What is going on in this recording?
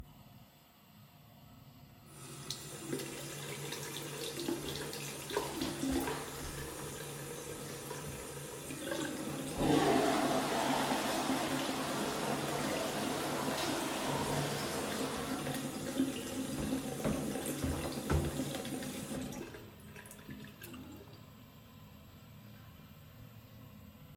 I turned on the bathroom tap and water started running. While the water was still running I flushed the toilet. Both sounds were audible at the same time before the toilet finished flushing. After a few seconds the tap was turned off.